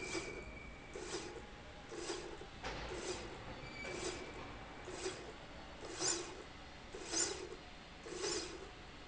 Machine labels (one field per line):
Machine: slide rail